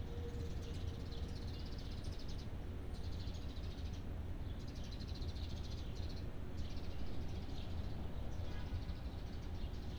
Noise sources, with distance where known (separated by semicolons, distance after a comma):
background noise